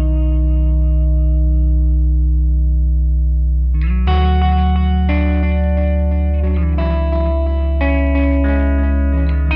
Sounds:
Music

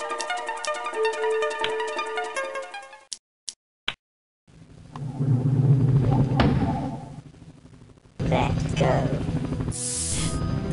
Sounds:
Music, Speech

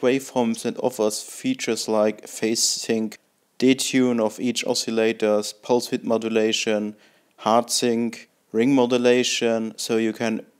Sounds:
Speech

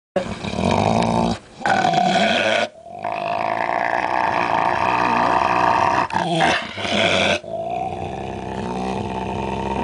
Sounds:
Dog, Animal, Growling, Domestic animals, dog growling

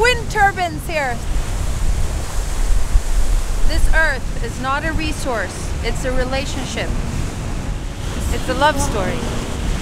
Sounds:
outside, rural or natural, Speech, Music, Vehicle

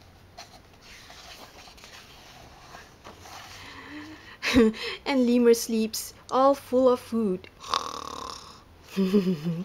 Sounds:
Speech

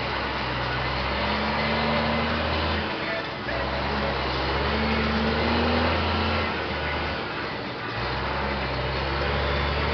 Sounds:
Vehicle, Music, Motor vehicle (road), Truck

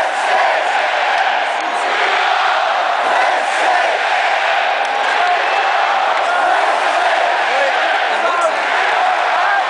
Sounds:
Chant, Crowd, people crowd, Vocal music, Speech

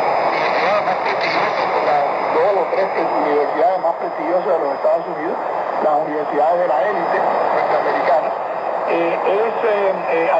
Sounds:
Speech, Radio

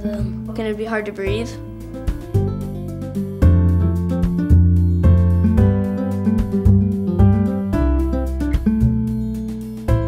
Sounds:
Speech, Music

